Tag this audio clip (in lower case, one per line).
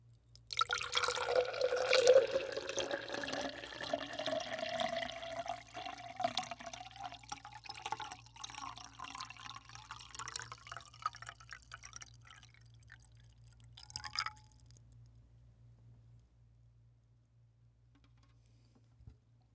liquid